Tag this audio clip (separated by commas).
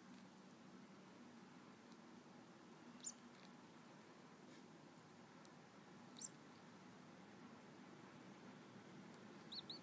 Bird